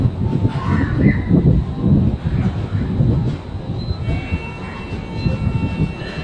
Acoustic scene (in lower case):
subway station